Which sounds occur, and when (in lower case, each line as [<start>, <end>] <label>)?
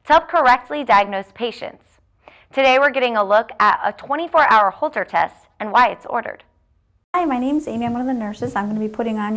[2.17, 2.51] breathing
[7.15, 9.35] background noise
[7.16, 9.35] female speech
[8.43, 8.55] generic impact sounds